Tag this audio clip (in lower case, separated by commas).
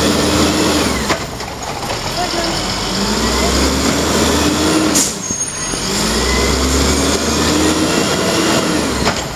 vehicle, truck